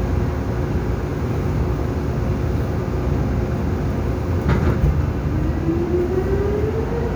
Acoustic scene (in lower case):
subway train